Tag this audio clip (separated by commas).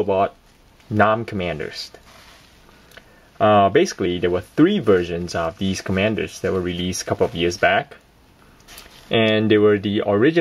Speech